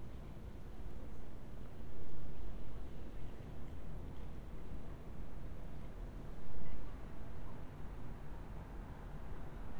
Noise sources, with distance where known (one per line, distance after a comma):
background noise